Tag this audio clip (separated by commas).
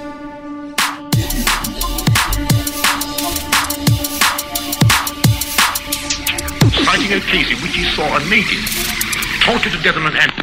Drum and bass, Music